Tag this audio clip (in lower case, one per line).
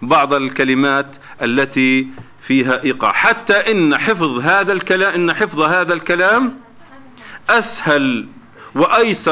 speech